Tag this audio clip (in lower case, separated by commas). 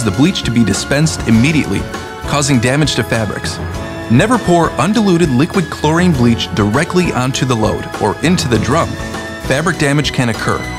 music, speech